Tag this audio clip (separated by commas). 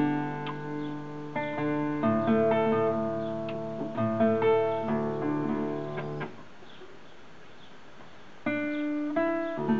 Musical instrument, Strum, Music, Guitar